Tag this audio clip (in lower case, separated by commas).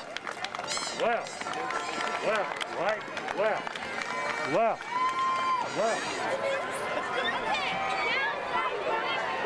hubbub, cheering, speech